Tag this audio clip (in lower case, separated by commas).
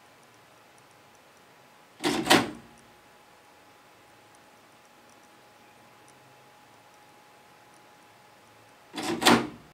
printer printing, printer